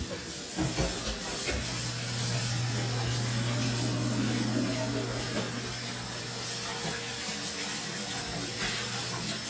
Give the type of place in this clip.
kitchen